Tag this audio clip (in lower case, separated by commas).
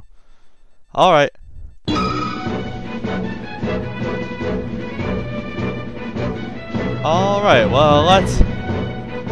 music, speech